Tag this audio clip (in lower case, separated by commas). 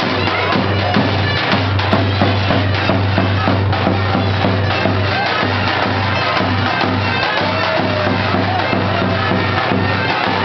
music